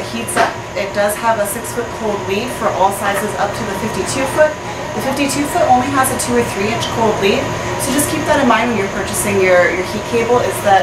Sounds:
inside a small room, Speech

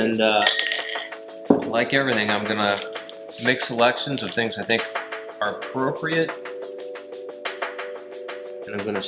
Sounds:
Glass, Music, Speech

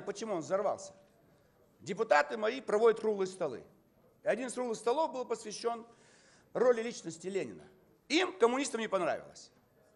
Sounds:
monologue, Speech, Male speech

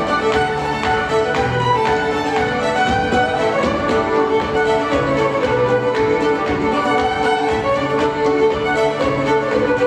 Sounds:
Violin, Music, Musical instrument

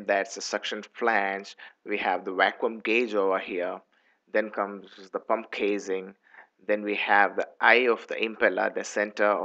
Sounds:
Speech

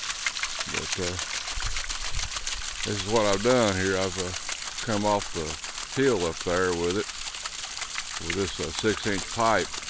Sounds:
Speech

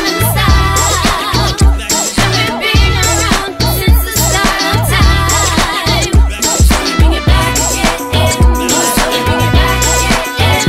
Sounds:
Hip hop music, Rapping, Music

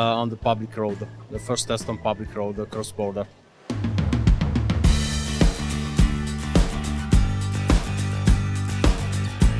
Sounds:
Music, Speech

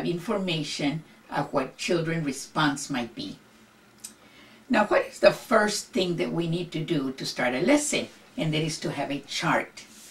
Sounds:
Speech

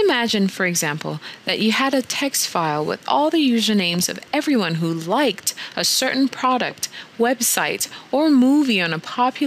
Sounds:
Speech

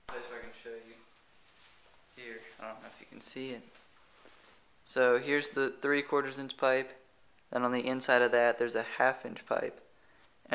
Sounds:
Speech

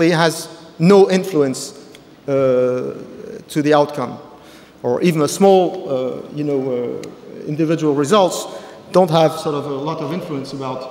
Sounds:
Speech

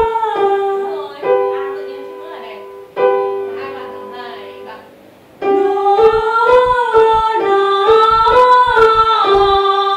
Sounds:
Keyboard (musical), Piano

